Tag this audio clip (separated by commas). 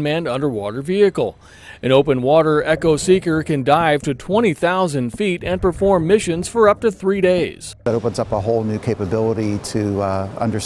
Speech